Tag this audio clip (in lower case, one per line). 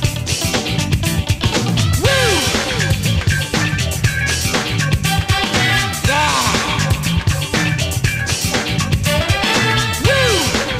music